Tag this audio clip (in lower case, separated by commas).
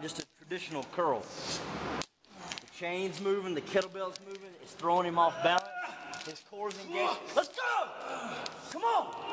speech, inside a large room or hall